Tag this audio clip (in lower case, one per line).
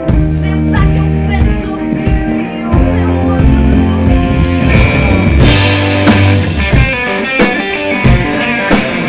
music